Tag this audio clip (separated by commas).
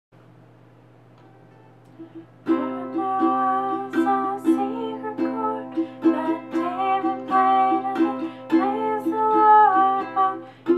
playing ukulele